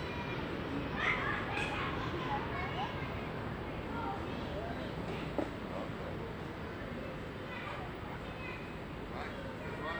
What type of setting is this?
residential area